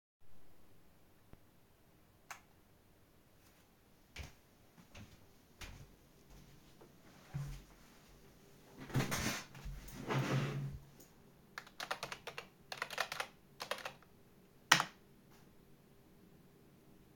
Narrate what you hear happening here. I switched the lights on in the office, then went to my computer and typed in the password.